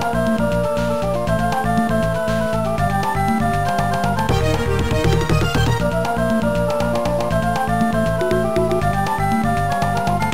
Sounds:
Soundtrack music, Music

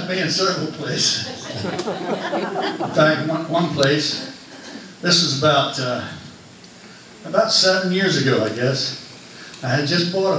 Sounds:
Speech

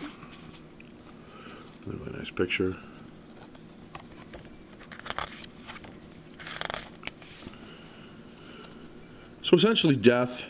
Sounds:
Speech

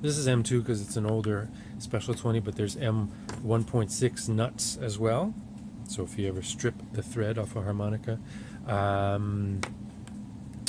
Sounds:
Speech

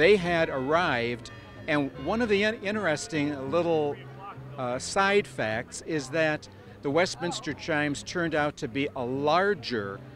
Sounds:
Speech

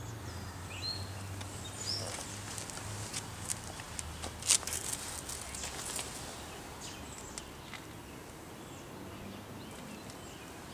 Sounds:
outside, rural or natural, Animal

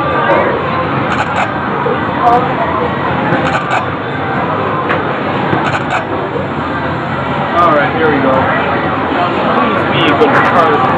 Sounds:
Speech

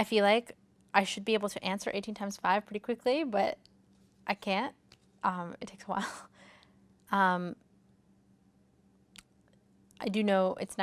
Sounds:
Speech

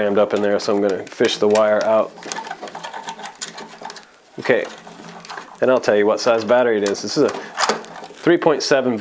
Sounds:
inside a small room, Speech

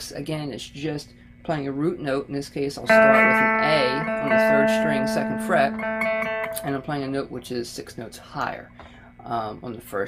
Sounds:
Music, Musical instrument, Guitar, Speech

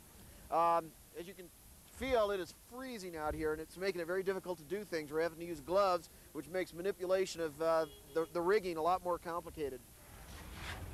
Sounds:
Speech

